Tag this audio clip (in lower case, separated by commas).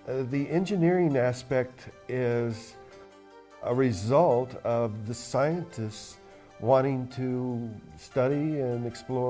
music, speech